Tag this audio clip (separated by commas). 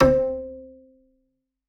Musical instrument, Music, Bowed string instrument